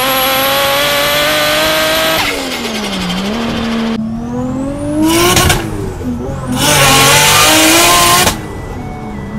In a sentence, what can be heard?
A car accelerating rapidly with musical notes in the background